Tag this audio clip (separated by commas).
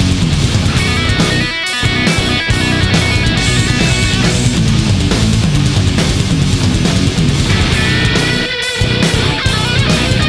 Music, Heavy metal